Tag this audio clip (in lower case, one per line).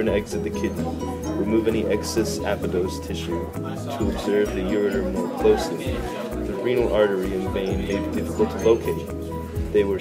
music
speech